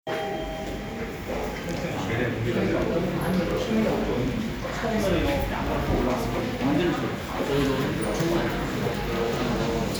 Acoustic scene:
elevator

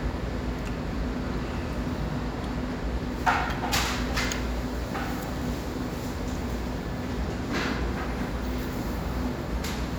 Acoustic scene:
cafe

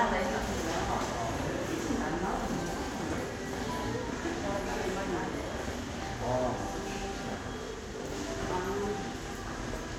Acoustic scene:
subway station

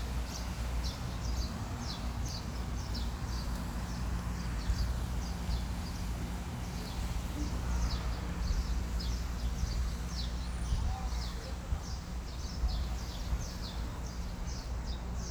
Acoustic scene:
residential area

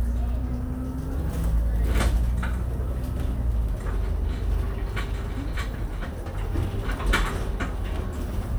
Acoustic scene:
bus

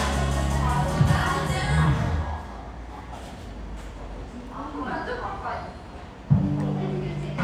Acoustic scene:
cafe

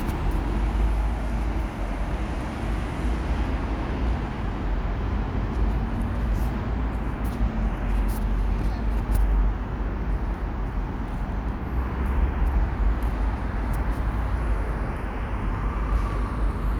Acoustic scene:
residential area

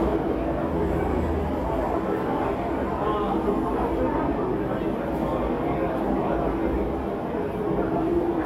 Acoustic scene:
crowded indoor space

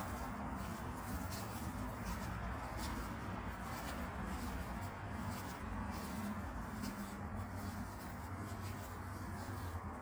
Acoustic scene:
park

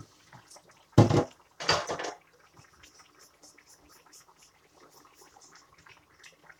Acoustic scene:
kitchen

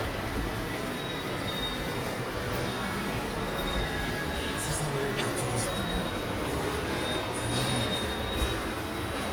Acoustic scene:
subway station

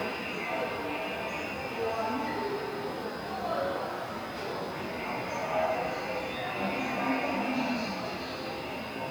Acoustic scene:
subway station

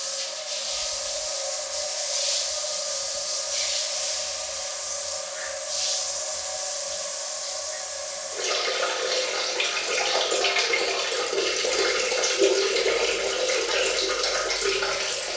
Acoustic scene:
restroom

